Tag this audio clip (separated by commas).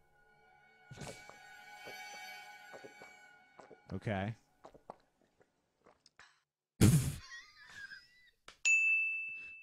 Ding